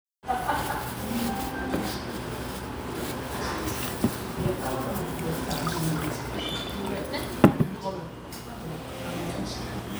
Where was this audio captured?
in a restaurant